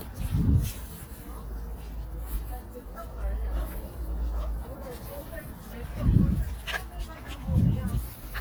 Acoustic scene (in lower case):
residential area